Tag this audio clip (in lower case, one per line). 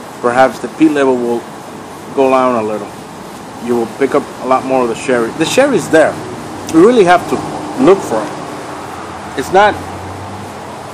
outside, urban or man-made
speech